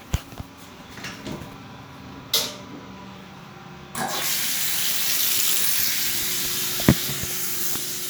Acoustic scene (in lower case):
restroom